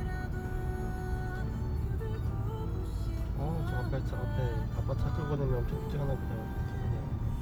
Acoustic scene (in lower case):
car